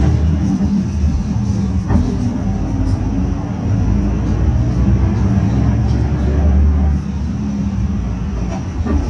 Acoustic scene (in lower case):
bus